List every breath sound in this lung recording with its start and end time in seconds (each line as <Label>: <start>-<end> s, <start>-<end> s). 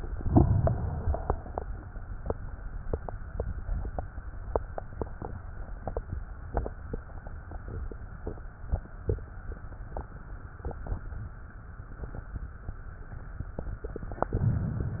Inhalation: 0.12-1.57 s, 14.10-15.00 s